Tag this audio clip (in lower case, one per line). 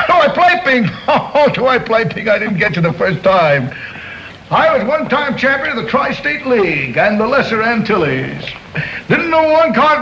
speech